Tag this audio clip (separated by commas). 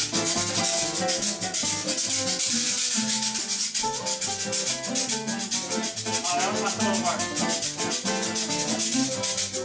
playing guiro